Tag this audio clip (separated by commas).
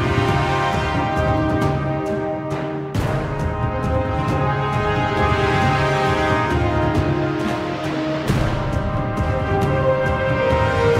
Theme music, Music